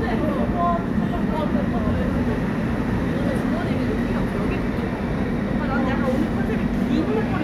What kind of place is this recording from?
subway station